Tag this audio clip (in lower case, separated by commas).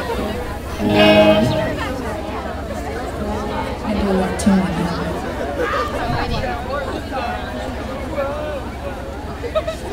music, speech